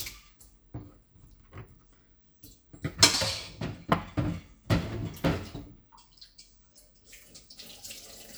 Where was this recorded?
in a kitchen